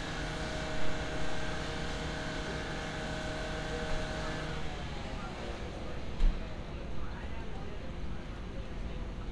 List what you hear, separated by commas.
unidentified powered saw